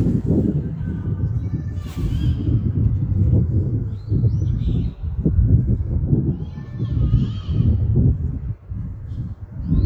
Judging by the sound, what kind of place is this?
park